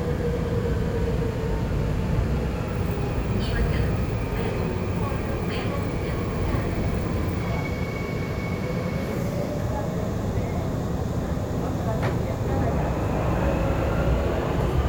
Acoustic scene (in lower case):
subway train